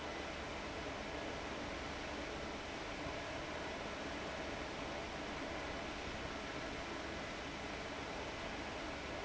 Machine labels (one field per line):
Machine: fan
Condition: abnormal